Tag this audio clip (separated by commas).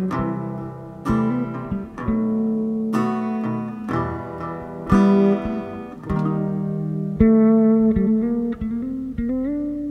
Guitar, Bass guitar, Music, Electronic tuner